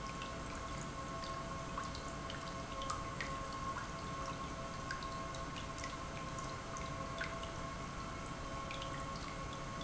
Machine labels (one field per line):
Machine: pump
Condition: normal